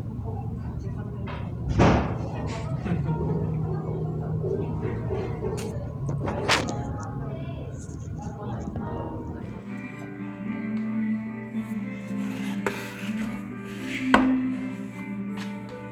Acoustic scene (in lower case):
cafe